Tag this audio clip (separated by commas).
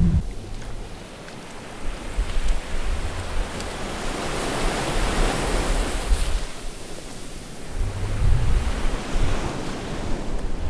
Ocean, ocean burbling